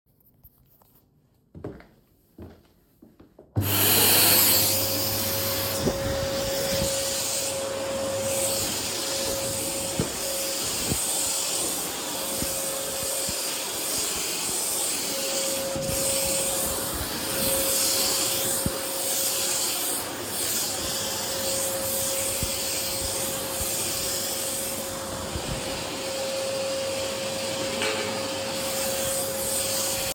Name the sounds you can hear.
footsteps, vacuum cleaner